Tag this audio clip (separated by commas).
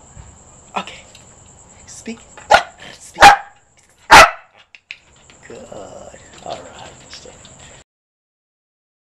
Dog, Bow-wow, Speech, pets, Animal